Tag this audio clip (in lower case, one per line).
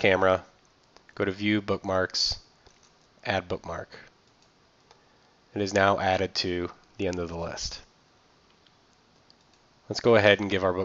speech